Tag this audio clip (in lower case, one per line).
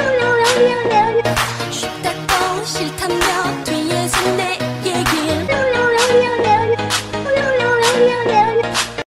music